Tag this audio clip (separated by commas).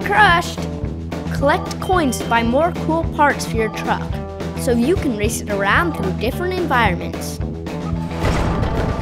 Speech, Music